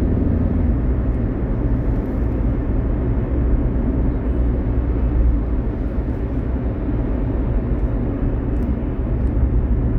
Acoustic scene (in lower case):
car